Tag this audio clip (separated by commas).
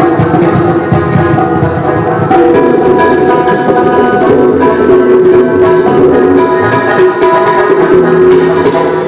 Drum, Percussion, Tabla